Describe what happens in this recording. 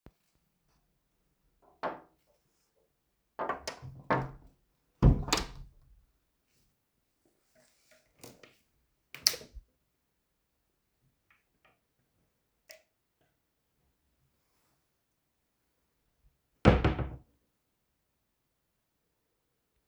I opened and closed the living room door and I checked jacket at wardrobe